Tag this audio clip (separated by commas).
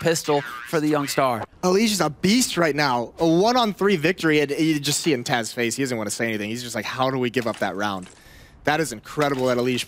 Speech